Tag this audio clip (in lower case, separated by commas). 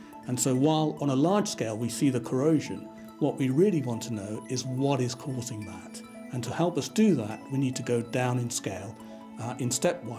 music, speech